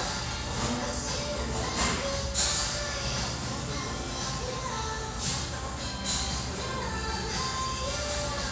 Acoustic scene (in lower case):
restaurant